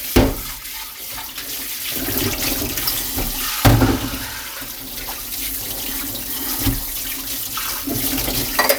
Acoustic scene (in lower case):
kitchen